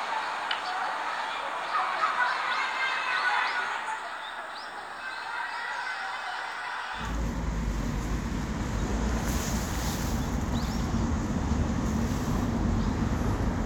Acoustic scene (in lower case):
residential area